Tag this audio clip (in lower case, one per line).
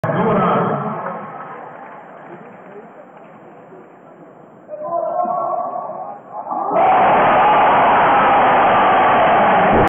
speech